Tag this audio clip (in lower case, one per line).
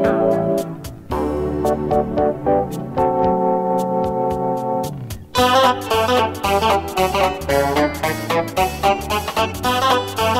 funk
music